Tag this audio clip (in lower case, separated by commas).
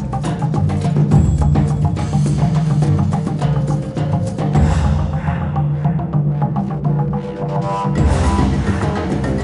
music